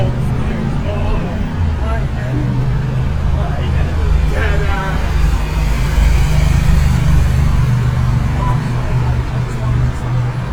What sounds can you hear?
medium-sounding engine, person or small group talking